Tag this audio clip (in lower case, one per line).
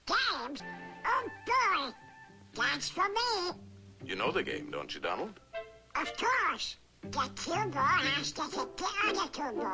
music
speech